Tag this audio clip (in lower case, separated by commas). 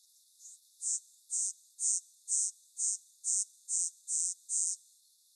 animal, wild animals, insect